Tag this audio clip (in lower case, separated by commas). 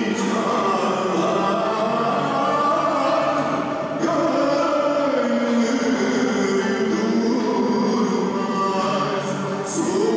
classical music, music, theme music